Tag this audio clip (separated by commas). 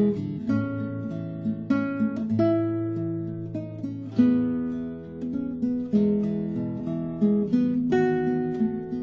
playing acoustic guitar, Strum, Acoustic guitar, Plucked string instrument, Guitar, Musical instrument, Music